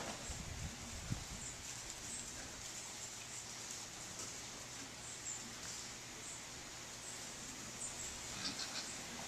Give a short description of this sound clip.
Rustling of material as pig is walking